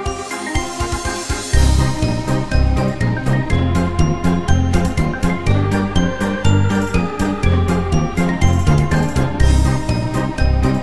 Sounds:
Theme music, Music

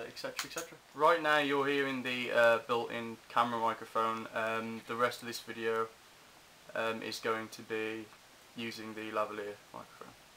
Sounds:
Speech

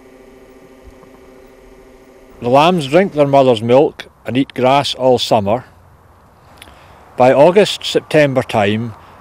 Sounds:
Speech

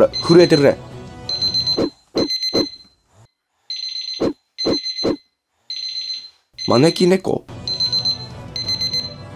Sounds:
alarm clock ringing

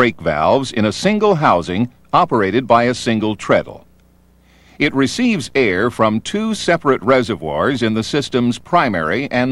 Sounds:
Speech

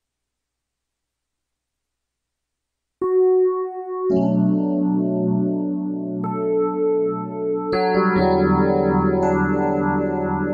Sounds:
Musical instrument, Piano, Keyboard (musical), inside a small room, Music

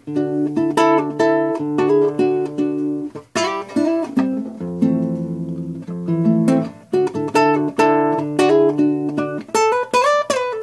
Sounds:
Strum, Musical instrument, Acoustic guitar, Music, Guitar

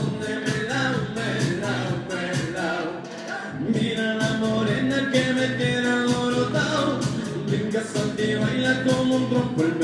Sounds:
Music

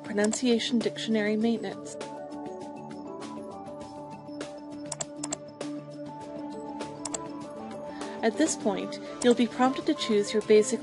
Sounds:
Music, Speech

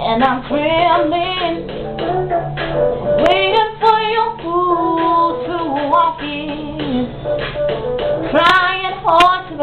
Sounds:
Music, Female singing

